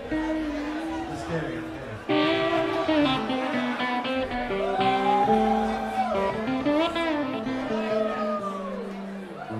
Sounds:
Speech, Music

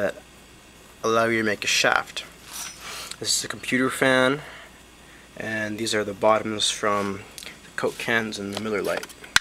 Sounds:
Speech

